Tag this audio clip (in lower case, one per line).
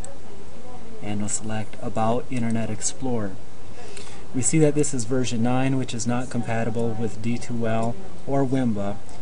speech